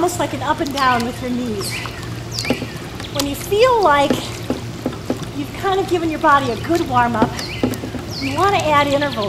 An adult female is speaking, birds are chirping, and water is splashing